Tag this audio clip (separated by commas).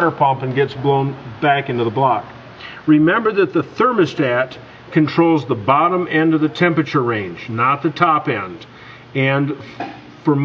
inside a large room or hall, Speech